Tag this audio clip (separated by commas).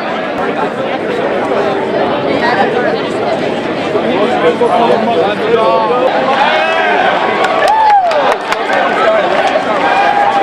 Whispering, Hubbub, Screaming